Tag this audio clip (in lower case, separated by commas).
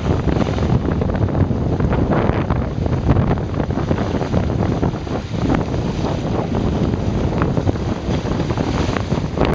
wind, wind noise (microphone), water vehicle, sailing, sailboat